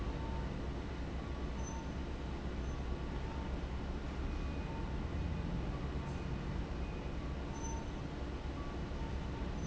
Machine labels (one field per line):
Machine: fan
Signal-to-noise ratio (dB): -6 dB